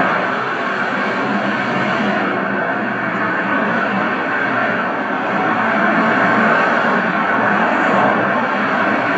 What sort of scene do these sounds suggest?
street